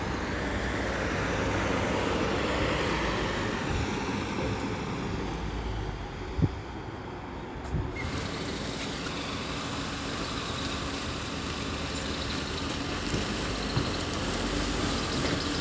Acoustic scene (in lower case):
street